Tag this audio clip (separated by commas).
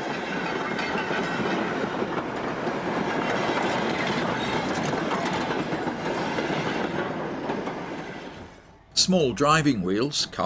Speech, Railroad car, Train, Vehicle, Rail transport